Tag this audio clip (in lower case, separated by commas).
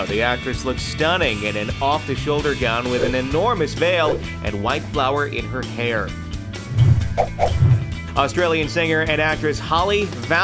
speech, music